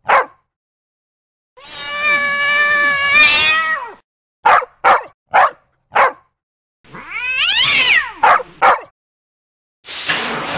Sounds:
roaring cats

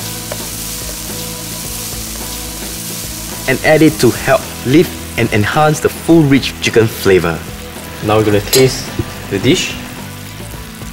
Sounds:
sizzle
music
speech

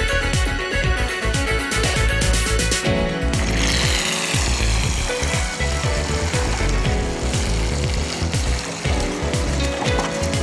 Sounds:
motorboat
music

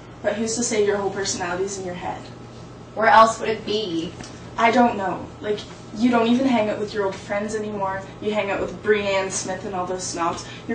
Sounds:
speech
conversation

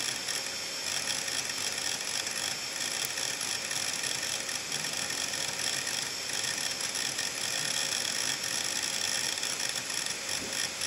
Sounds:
inside a small room

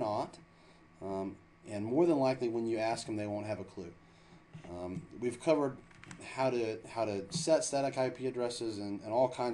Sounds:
speech

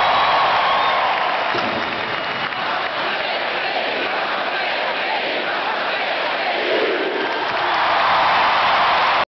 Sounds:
speech

